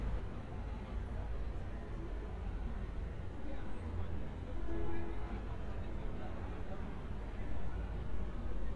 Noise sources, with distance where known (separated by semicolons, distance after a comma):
car horn, far; person or small group talking, far